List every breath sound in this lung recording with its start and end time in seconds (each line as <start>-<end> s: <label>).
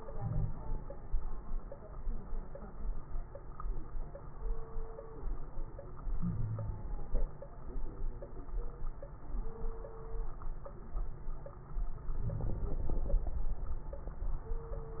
0.02-0.98 s: inhalation
0.11-0.52 s: wheeze
6.19-6.90 s: wheeze
6.19-6.97 s: inhalation
12.18-13.23 s: inhalation
12.23-12.75 s: wheeze